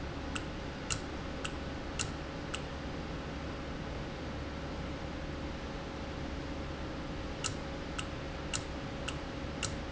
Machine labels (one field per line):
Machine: valve